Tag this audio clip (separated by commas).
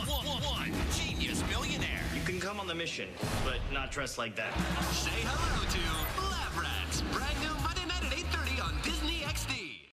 Speech, Music